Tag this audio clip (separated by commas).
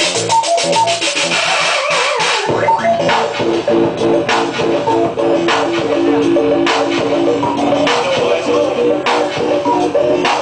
Music